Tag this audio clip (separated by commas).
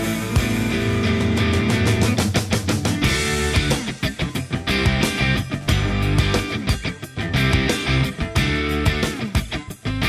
Music